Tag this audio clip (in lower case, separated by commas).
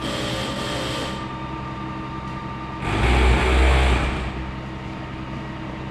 mechanisms